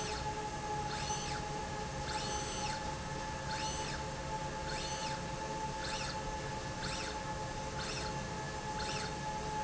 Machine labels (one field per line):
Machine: slide rail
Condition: normal